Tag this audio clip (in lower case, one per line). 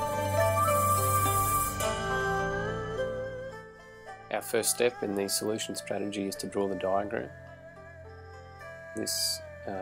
speech
music